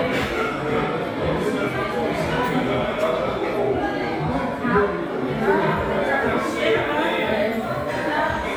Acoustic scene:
restaurant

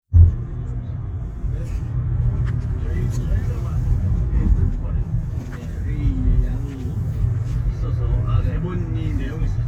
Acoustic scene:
car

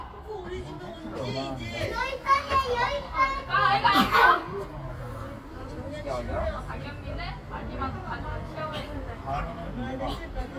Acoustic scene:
park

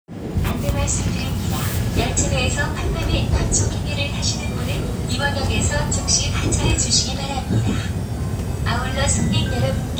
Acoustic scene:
subway train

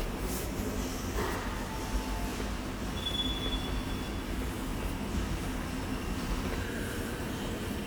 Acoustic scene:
subway station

